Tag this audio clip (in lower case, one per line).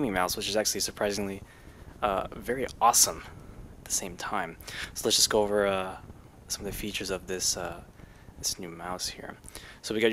speech